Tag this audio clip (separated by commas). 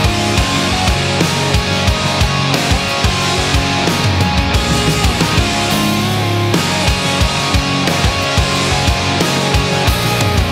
Rhythm and blues, Disco, Music, Funk